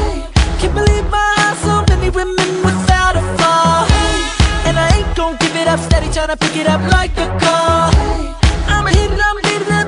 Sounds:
music, pop music

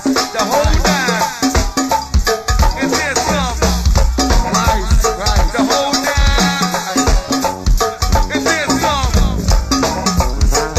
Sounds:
music

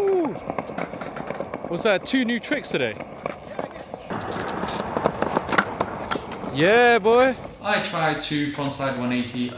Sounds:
skateboarding

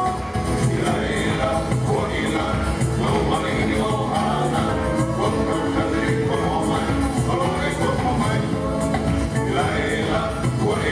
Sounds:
music of latin america, music

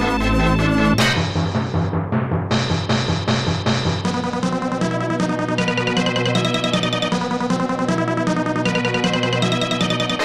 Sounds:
music

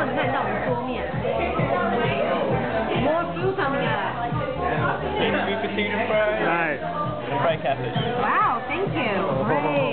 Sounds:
speech, music

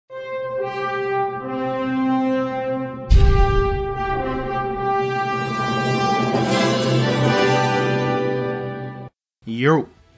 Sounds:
brass instrument, trumpet

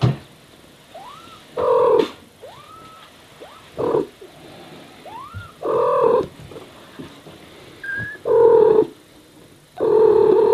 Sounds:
cat purring

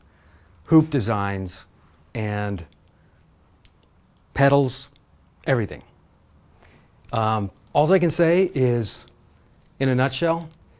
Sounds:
speech

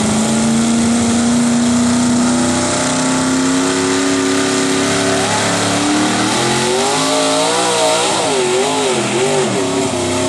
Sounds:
vehicle, truck

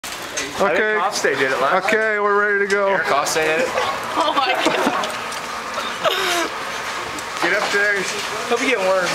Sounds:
speech

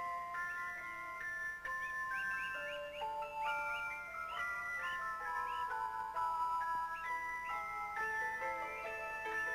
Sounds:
soundtrack music, background music, music

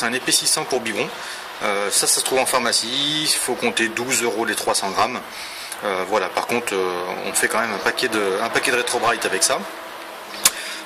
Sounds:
speech

